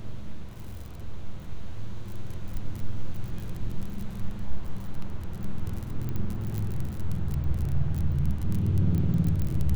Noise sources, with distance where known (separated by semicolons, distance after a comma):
medium-sounding engine